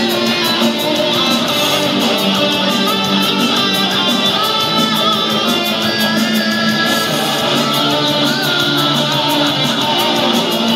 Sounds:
Strum, Plucked string instrument, Guitar, Electric guitar, Music, Musical instrument

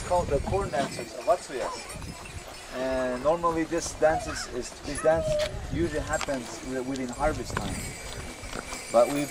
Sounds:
Speech

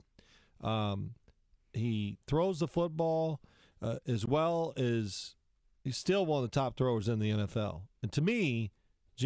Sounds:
Speech

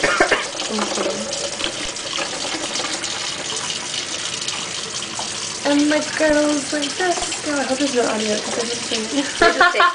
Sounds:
Bathtub (filling or washing), Sink (filling or washing), Water, Water tap

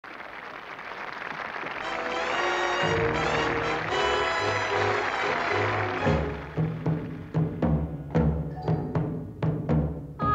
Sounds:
Timpani, Music

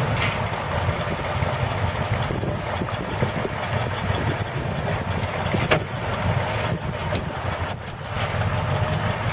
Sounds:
Vehicle, Truck, Idling

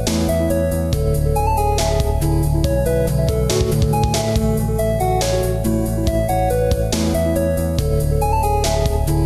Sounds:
Music

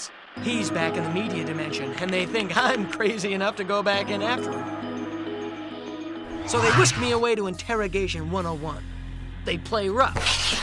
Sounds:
Speech, Music

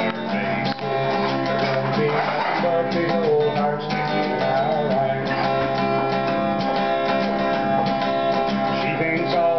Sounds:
Music, Musical instrument, Guitar, Plucked string instrument, Singing

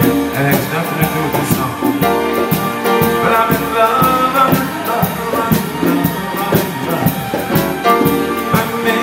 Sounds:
Keyboard (musical), Piano, Music, Vocal music

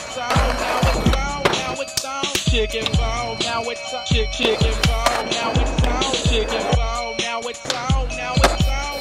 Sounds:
Music

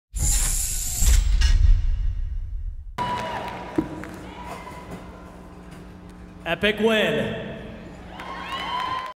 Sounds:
Speech, monologue, Male speech

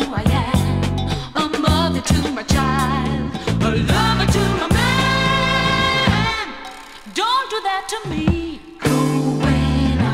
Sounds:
Singing, Music, Music of Asia

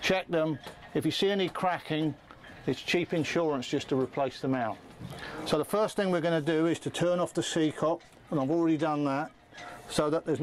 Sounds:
Speech

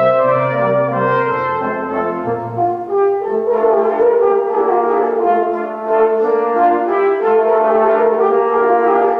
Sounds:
French horn, playing french horn, Music

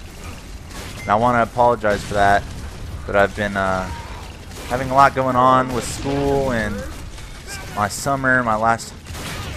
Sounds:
Speech

